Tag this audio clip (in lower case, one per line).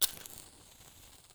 fire